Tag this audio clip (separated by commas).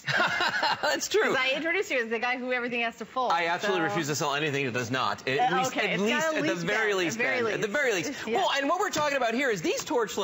Speech